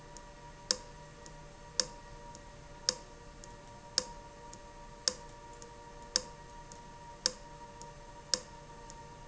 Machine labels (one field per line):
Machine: valve